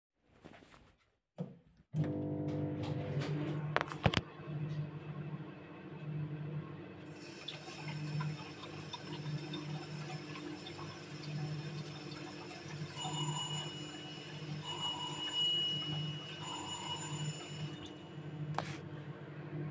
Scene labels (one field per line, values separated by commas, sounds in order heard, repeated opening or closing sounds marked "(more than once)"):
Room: kitchen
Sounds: microwave, running water, bell ringing